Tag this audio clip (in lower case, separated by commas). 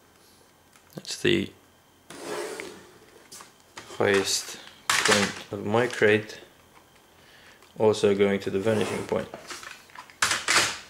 speech, door